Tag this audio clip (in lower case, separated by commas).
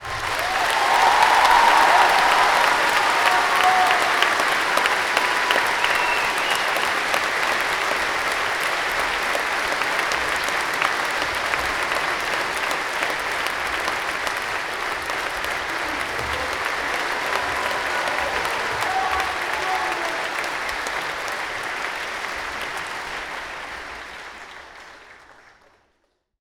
applause, human group actions, cheering